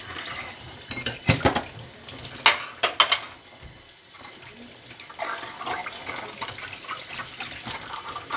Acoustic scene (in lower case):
kitchen